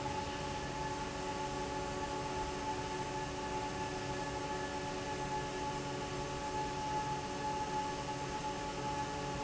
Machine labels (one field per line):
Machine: fan